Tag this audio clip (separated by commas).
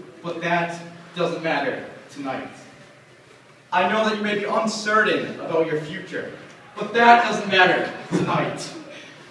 monologue, Speech, man speaking